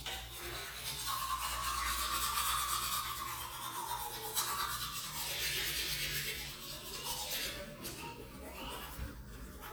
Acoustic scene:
restroom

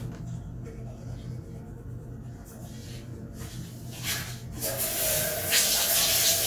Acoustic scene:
restroom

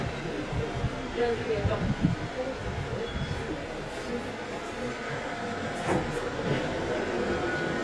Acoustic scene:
subway train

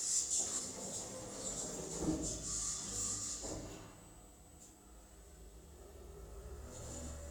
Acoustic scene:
elevator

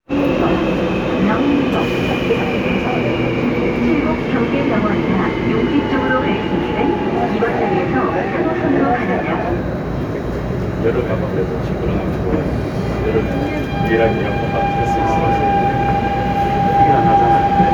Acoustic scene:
subway train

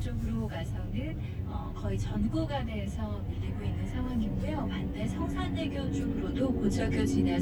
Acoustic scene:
car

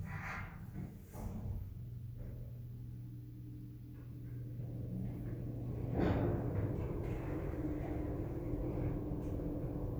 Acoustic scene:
elevator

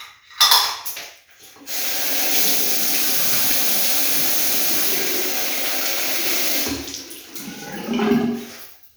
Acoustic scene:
restroom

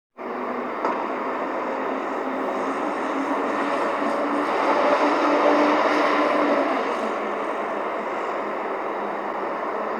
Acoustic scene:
street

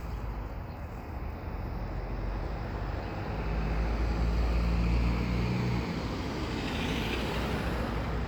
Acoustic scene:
street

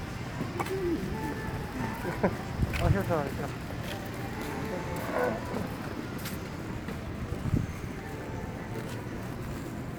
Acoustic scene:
street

